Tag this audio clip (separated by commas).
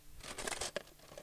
silverware, Domestic sounds